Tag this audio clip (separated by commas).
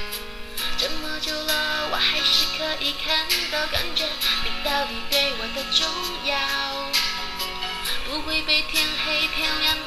Music, Female singing